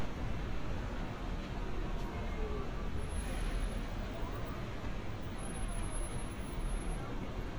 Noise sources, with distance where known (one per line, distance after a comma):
engine of unclear size, near